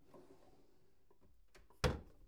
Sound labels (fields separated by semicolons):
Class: drawer; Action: closing